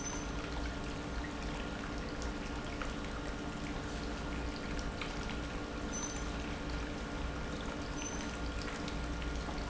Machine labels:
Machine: pump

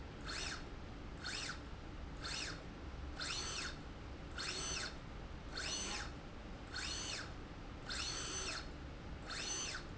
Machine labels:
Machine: slide rail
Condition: normal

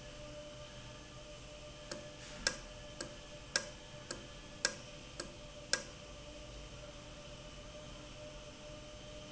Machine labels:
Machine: valve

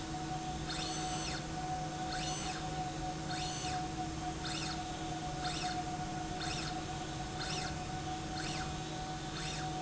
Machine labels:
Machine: slide rail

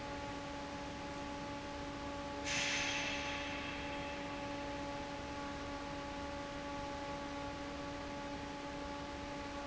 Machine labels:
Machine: fan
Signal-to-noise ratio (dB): 0 dB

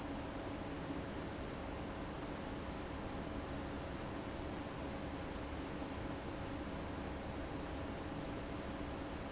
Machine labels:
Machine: fan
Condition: abnormal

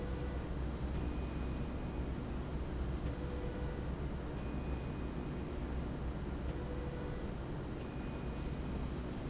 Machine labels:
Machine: slide rail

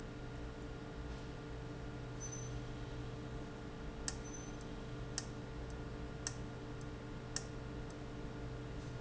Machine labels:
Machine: valve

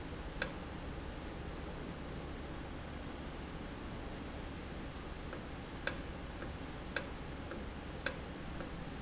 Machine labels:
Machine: valve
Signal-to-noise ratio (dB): 0 dB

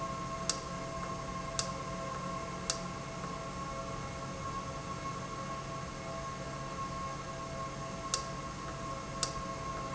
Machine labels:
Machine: valve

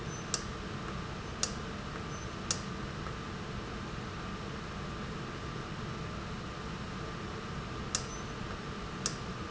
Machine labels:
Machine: valve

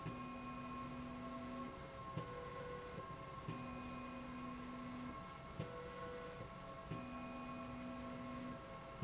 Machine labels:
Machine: slide rail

